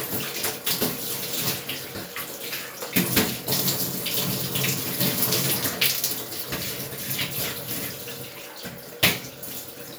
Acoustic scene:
restroom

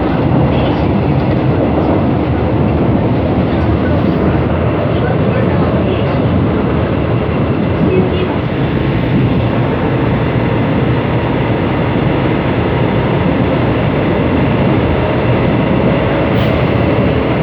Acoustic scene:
subway train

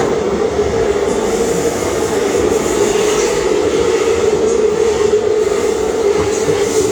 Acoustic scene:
subway train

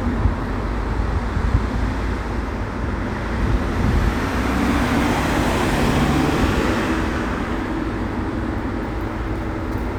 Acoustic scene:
street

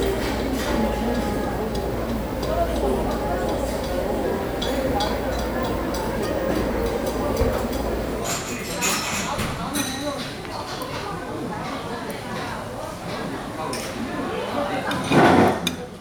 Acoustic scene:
restaurant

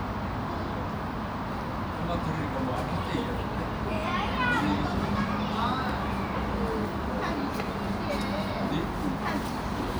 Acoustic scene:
park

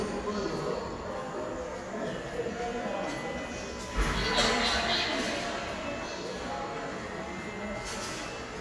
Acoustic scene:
subway station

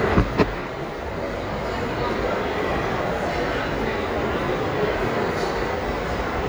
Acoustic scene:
crowded indoor space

